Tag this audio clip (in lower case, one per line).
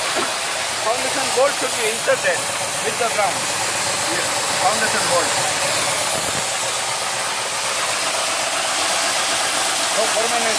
spraying water